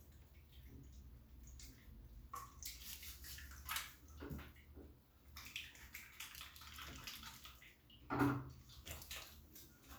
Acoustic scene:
restroom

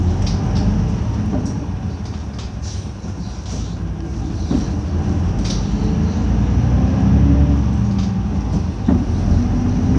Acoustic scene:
bus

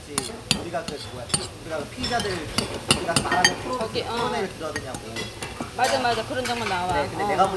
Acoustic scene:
restaurant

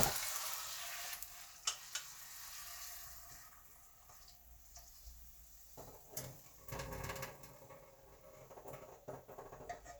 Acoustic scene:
kitchen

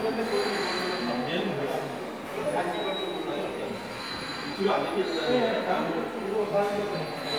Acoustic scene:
subway station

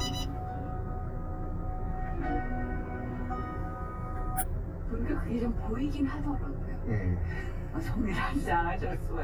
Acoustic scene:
car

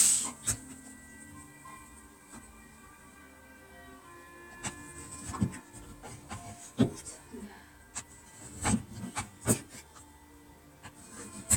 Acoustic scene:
kitchen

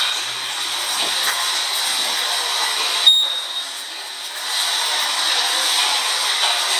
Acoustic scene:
subway station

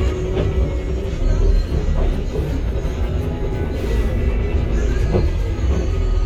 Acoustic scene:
bus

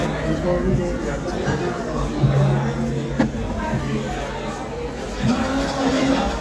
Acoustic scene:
crowded indoor space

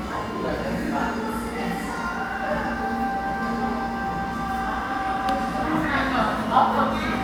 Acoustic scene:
crowded indoor space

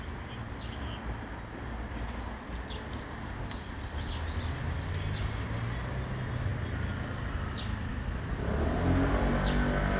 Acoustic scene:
residential area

